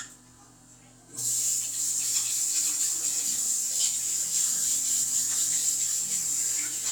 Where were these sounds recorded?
in a restroom